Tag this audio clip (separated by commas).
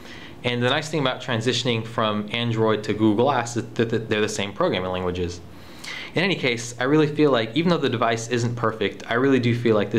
Speech